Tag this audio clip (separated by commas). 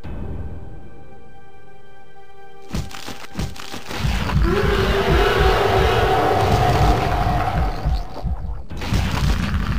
Music